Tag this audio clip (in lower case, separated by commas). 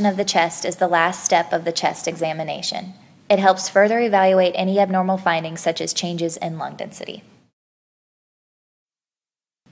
speech